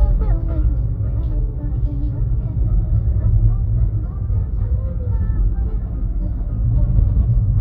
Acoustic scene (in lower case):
car